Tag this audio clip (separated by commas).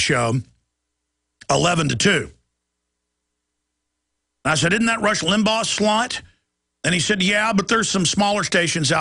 Speech